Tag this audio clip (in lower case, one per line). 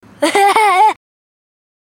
laughter
human voice